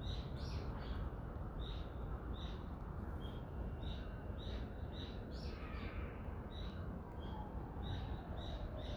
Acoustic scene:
residential area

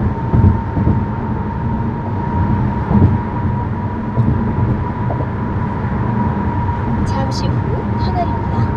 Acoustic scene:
car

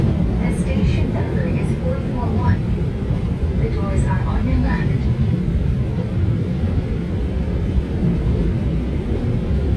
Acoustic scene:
subway train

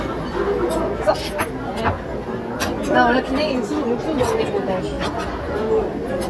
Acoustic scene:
restaurant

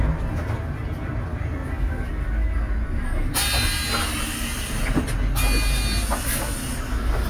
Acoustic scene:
bus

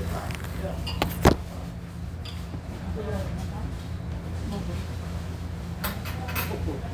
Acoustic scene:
restaurant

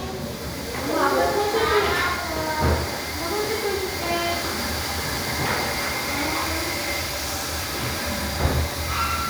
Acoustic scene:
restroom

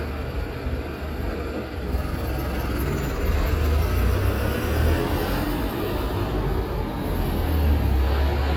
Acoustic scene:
street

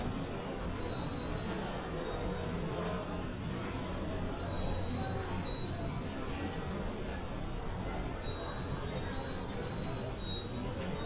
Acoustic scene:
subway station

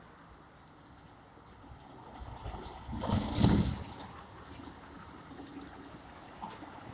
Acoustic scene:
street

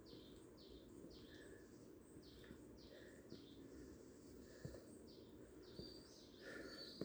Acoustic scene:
park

